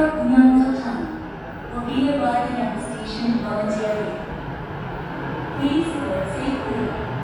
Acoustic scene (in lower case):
subway station